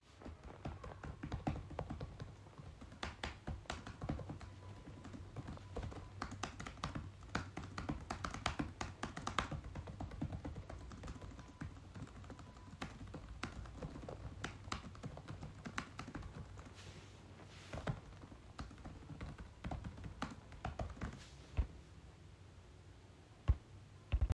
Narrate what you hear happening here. I am sitting at my desk in a quiet office environment. I am continuously typing on my laptop keyboard for the duration of the recording to capture the rhythmic sound of the keys